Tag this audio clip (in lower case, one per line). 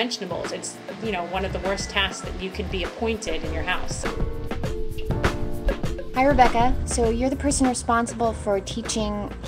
music
speech